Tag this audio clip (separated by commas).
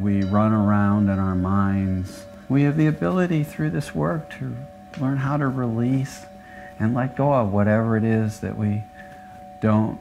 singing bowl